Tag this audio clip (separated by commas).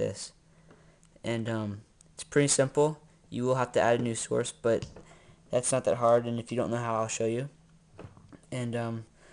Speech